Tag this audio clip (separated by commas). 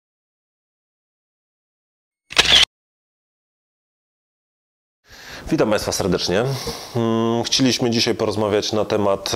Single-lens reflex camera, Camera, Speech